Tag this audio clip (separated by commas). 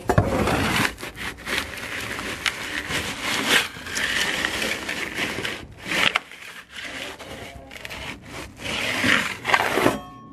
inside a small room